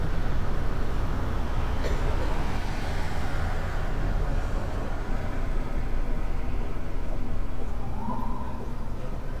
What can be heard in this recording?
medium-sounding engine, unidentified alert signal